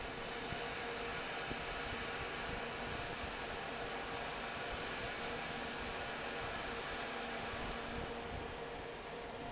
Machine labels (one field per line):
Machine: fan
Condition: normal